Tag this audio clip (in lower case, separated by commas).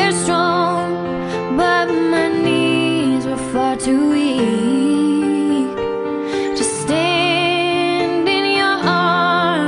music